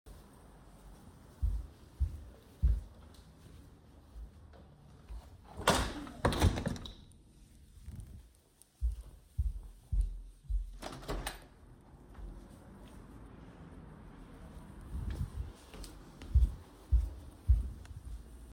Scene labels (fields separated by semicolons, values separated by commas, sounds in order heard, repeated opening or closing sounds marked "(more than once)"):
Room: living room; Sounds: footsteps, window (more than once)